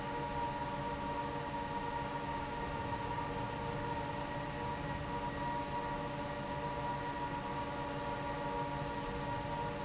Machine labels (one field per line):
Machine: fan